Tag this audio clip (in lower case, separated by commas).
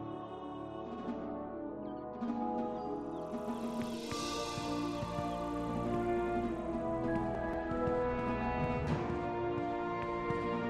music, walk